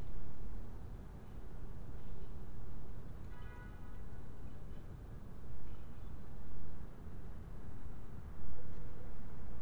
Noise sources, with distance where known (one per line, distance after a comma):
car horn, far